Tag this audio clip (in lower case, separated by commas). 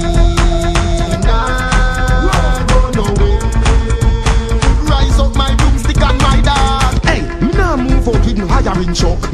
music